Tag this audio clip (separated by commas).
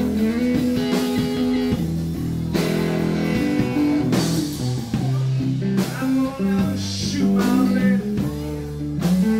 Musical instrument, Guitar, Acoustic guitar, Speech, Music, Strum, Plucked string instrument